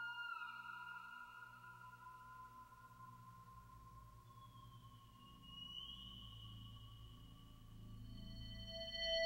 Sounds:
Music, Ambient music

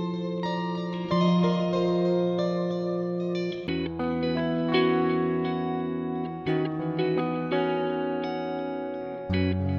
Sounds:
Musical instrument, Music, Guitar, Plucked string instrument

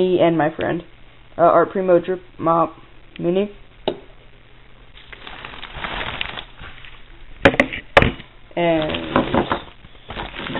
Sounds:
inside a small room, Speech

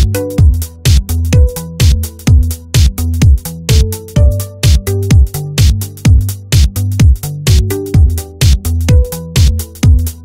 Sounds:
Music

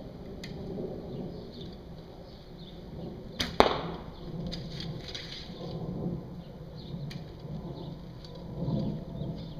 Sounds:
Arrow

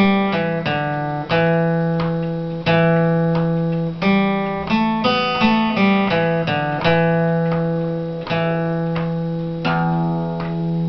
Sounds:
Guitar, Plucked string instrument, Musical instrument, Music

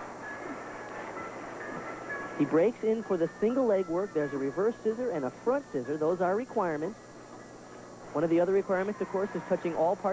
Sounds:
Speech

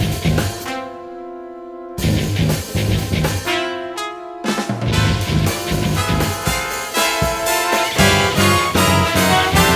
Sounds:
Music

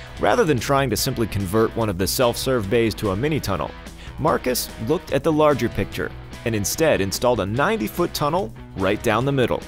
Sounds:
Speech, Music

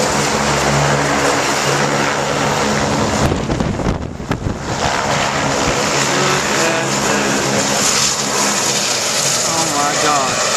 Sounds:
Speech, Propeller, Aircraft, Vehicle

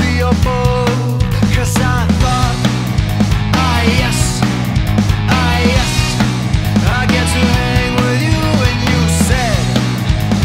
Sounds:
Music

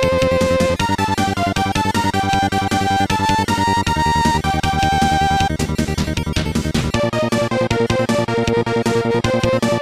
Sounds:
Video game music, Music

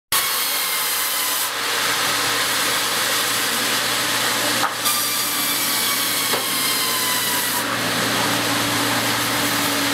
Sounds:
Rub, Wood, Sawing

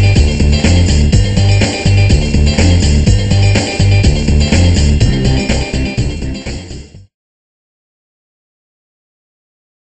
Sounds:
Music

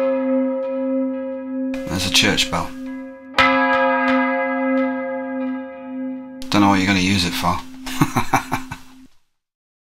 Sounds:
Speech

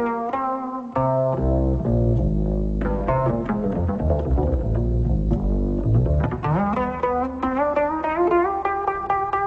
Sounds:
Music

